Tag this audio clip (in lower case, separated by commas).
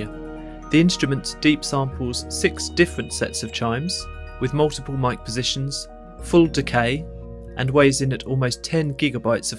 chime